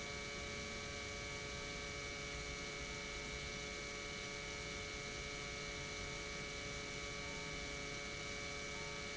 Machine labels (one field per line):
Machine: pump